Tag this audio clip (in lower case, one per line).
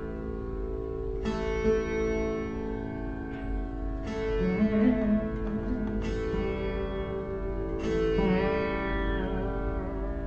pizzicato